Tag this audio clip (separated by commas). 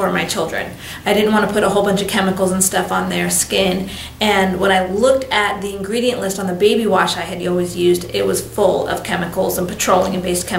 Speech